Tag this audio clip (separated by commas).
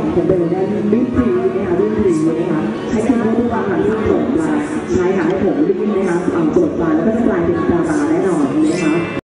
Music, Speech